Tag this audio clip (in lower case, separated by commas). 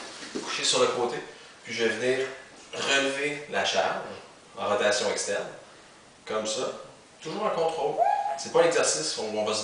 speech